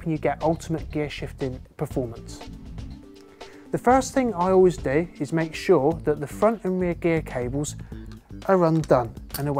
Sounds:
Speech, Music

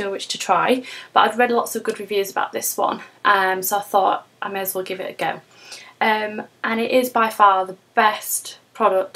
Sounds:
Speech

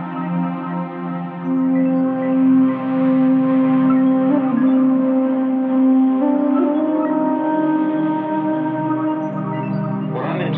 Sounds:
Music

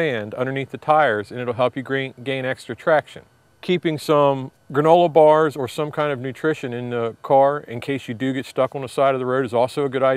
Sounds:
Speech

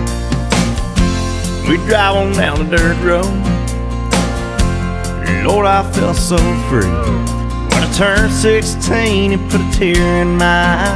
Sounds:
Music

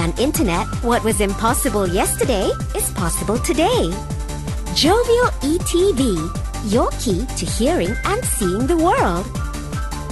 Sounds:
Speech, Music

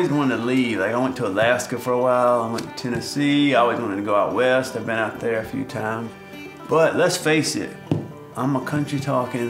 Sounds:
Speech, Music

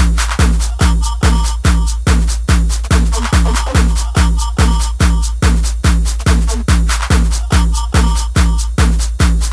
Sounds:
Music

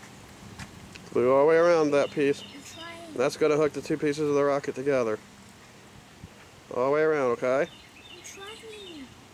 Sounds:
Speech, kid speaking, outside, rural or natural

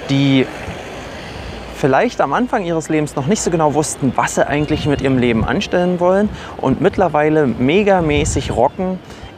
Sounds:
Speech, Music

